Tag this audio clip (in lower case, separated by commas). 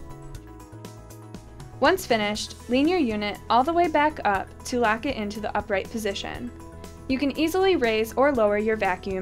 music, speech